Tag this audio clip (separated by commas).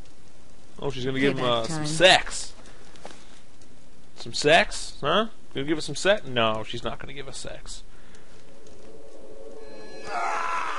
Speech